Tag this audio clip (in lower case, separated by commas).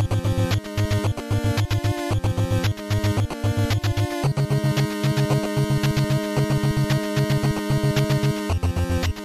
music, theme music